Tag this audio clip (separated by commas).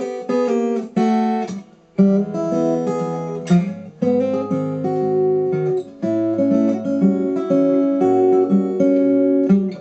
Musical instrument, Plucked string instrument, Music, Guitar, Acoustic guitar